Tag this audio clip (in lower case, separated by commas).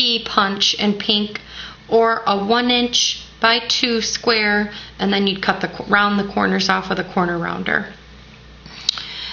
speech